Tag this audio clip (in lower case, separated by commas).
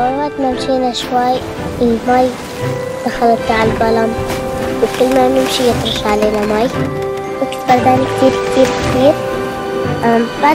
surf, ocean